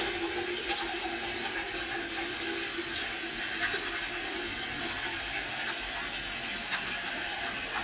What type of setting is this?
restroom